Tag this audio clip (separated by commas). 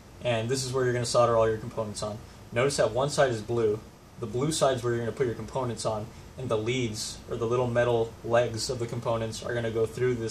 Speech